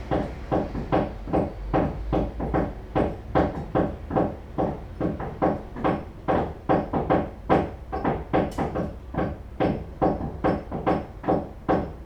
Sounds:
Tools, Hammer

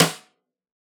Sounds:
Percussion, Music, Musical instrument, Snare drum, Drum

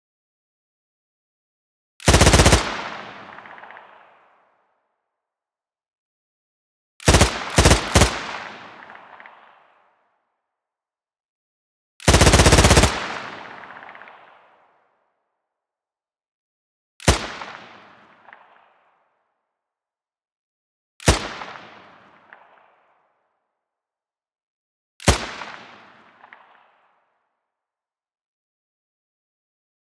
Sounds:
Gunshot, Explosion

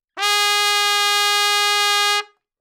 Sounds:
Music, Trumpet, Brass instrument, Musical instrument

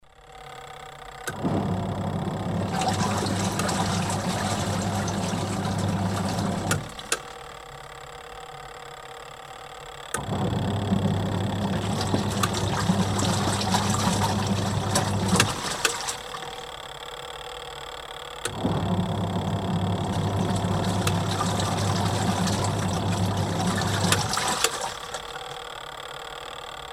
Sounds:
Engine

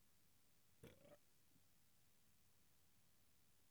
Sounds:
Burping

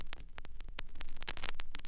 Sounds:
Crackle

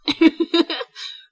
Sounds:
Human voice, Laughter

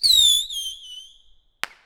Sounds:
Explosion, Fireworks

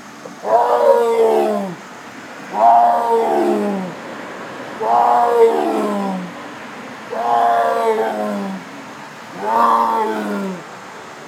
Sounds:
Animal, Wild animals

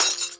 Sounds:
Shatter, Glass

